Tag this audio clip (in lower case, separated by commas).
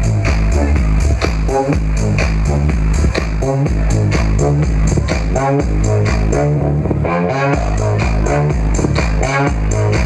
electronic music, music